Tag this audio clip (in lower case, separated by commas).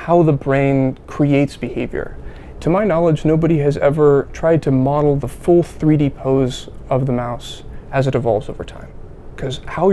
speech